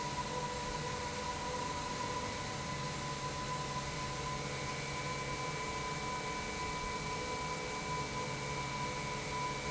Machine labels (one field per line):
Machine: pump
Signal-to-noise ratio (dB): -6 dB